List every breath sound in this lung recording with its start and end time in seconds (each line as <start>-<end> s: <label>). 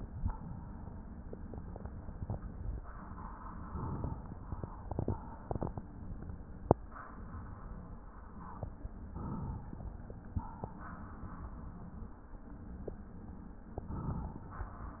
3.73-4.88 s: inhalation
4.88-6.60 s: exhalation
9.10-10.36 s: inhalation
10.36-12.02 s: exhalation
13.77-15.00 s: inhalation